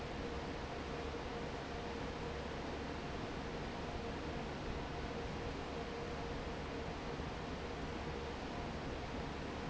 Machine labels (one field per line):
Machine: fan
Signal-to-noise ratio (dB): 0 dB